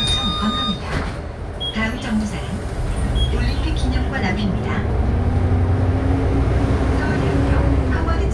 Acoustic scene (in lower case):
bus